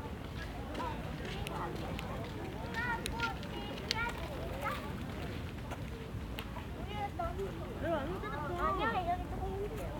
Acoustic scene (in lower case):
park